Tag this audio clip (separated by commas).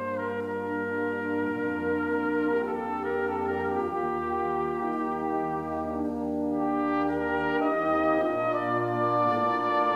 playing oboe